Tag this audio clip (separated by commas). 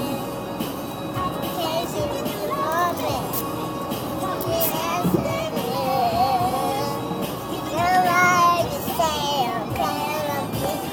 Music, Child singing, Female singing